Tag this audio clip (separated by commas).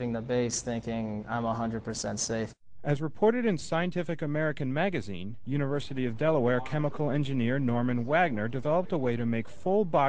Speech